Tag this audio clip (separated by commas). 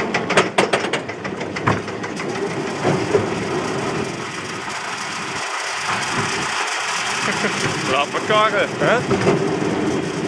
Speech